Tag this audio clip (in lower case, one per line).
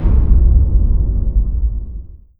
explosion
boom